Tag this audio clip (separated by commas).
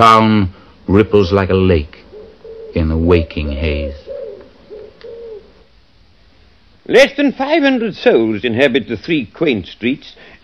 Speech